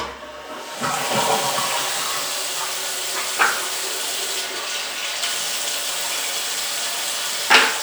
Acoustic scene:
restroom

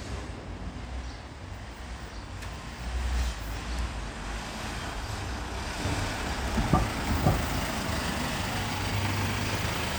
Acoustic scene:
residential area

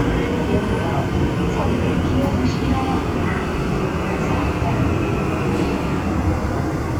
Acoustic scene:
subway train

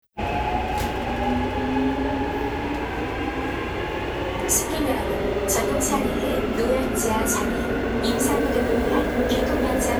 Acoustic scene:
subway train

